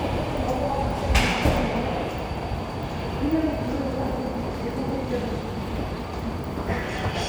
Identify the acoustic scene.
subway station